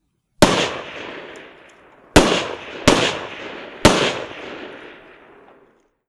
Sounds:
explosion
gunfire

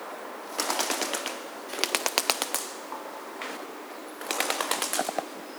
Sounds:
wild animals
bird
animal

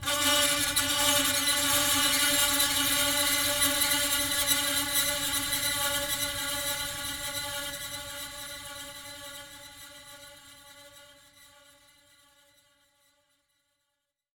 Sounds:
screech

